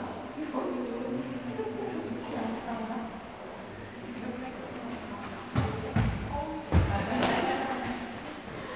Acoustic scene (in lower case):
crowded indoor space